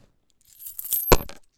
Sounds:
home sounds, Coin (dropping)

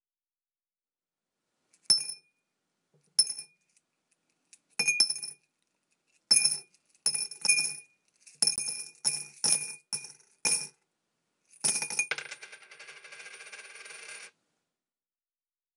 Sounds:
Domestic sounds, Coin (dropping)

